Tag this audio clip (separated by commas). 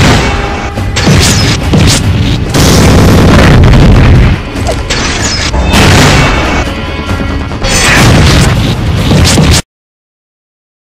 Music